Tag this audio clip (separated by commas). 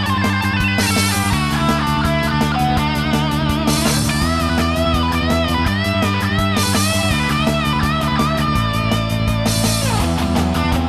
Music, Musical instrument, Electric guitar, Guitar